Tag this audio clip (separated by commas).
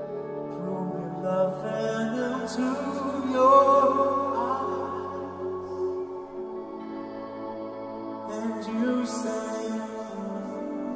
Music